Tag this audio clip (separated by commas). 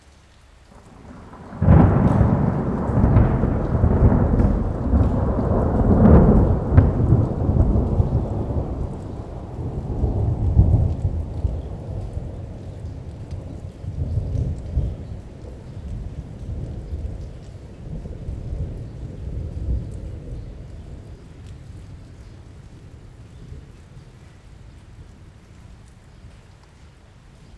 Thunderstorm, Rain, Thunder, Water